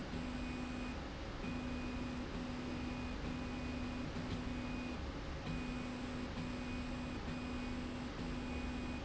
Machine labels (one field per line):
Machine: slide rail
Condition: normal